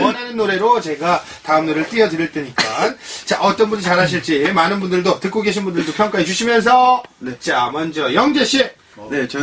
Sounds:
speech

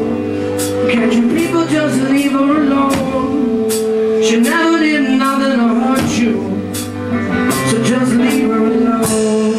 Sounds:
music

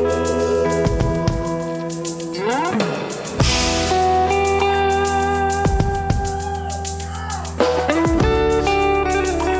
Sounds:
guitar, musical instrument, plucked string instrument, electric guitar, music, strum

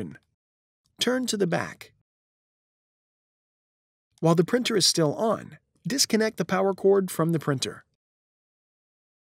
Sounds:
speech

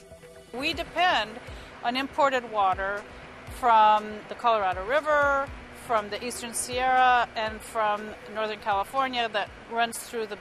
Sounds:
speech, music

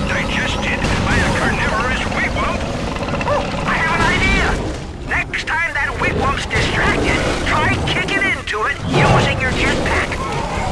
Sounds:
speech

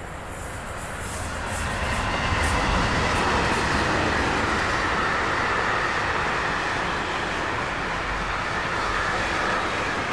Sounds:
train

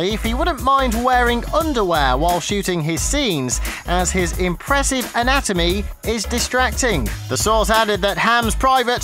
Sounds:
speech, music

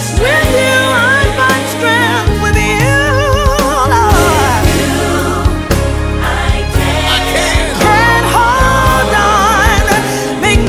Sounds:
pop music, singing, music

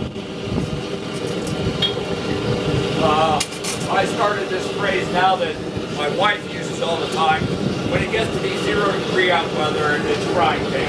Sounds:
speech

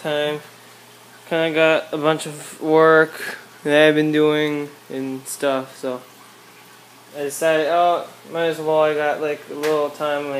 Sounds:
inside a small room, speech

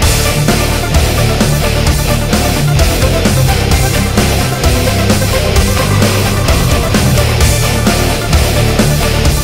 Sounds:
music

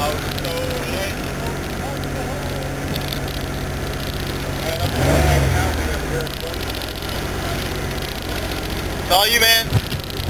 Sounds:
race car, outside, rural or natural, speech, car, vehicle

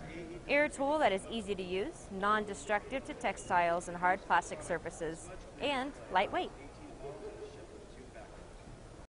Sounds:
speech

